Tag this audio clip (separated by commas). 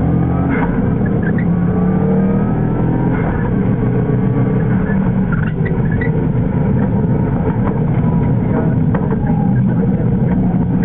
Car, Vehicle